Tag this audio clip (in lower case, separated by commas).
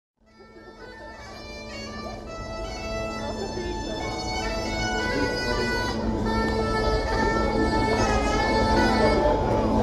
playing bagpipes